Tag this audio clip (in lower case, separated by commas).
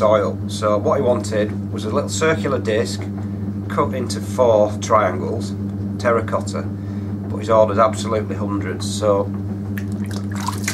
speech